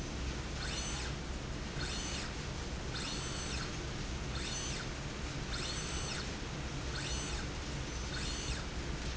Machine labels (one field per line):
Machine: slide rail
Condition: normal